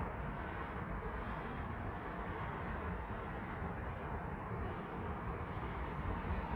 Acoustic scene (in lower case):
street